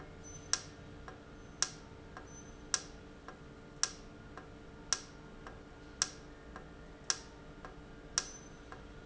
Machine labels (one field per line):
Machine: valve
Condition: normal